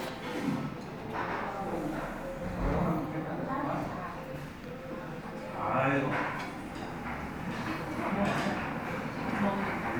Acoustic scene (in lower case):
crowded indoor space